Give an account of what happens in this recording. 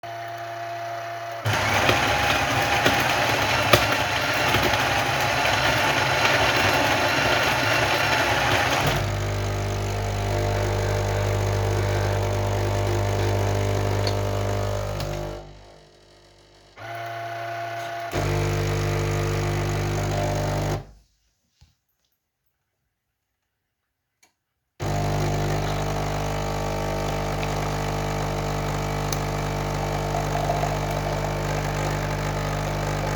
I pressed start on the coffee machine.